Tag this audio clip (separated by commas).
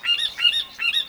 Wild animals, Bird, bird call, Animal